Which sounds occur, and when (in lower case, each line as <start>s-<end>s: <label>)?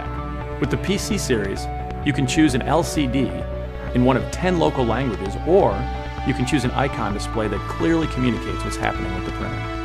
0.0s-9.8s: music
0.6s-0.6s: tick
0.7s-0.7s: tick
0.8s-1.6s: man speaking
1.4s-1.4s: tick
1.9s-1.9s: tick
2.0s-3.3s: man speaking
3.3s-3.4s: tick
3.9s-4.0s: tick
4.0s-5.8s: man speaking
4.1s-4.1s: tick
4.3s-4.3s: tick
5.1s-5.1s: tick
5.2s-5.3s: tick
6.2s-6.3s: tick
6.2s-9.5s: man speaking
6.4s-6.4s: tick